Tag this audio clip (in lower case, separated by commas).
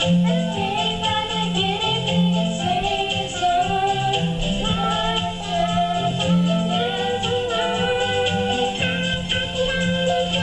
music